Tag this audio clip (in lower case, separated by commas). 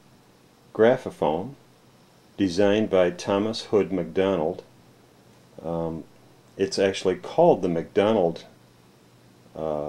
speech